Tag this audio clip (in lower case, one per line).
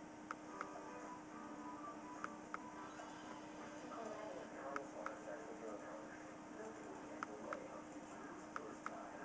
speech